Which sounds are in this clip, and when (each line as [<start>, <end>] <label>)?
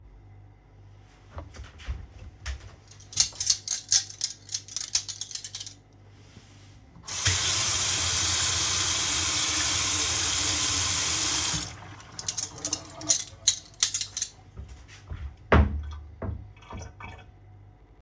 [3.10, 5.85] cutlery and dishes
[7.02, 11.87] running water
[12.16, 14.41] cutlery and dishes
[15.46, 17.26] wardrobe or drawer